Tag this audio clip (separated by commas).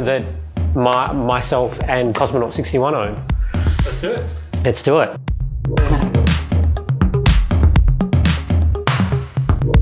Music, Speech